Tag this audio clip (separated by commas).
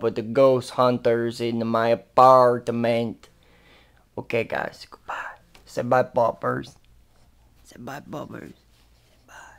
Whispering